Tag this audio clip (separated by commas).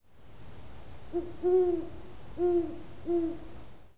Bird, Wild animals, Animal